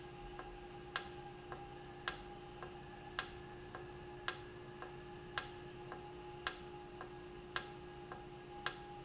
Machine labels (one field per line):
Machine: valve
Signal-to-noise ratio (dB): 6 dB